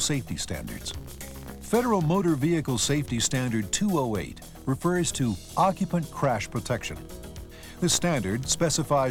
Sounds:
music
speech

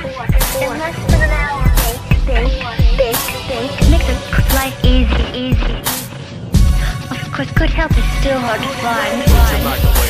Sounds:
music
inside a small room
speech
rapping

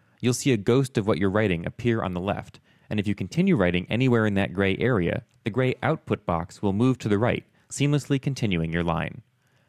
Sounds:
speech

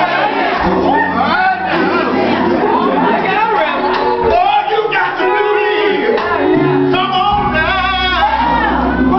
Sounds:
music
male singing
speech

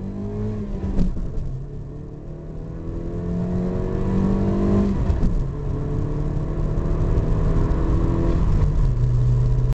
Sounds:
car
vroom
vehicle
medium engine (mid frequency)

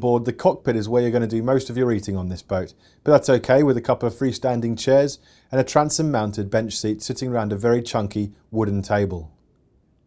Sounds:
speech

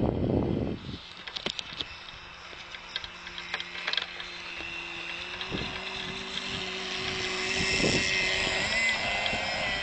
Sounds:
sailboat

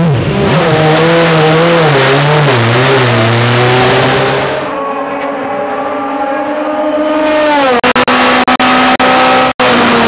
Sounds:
auto racing
car
tire squeal
vehicle

